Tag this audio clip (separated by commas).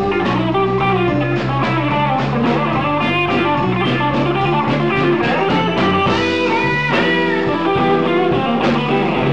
Plucked string instrument, Strum, Guitar, Electric guitar, Musical instrument, Music